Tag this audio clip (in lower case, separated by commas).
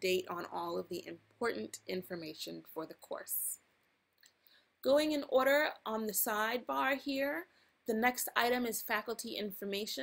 speech